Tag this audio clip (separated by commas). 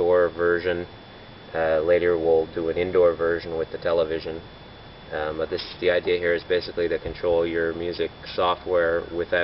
Speech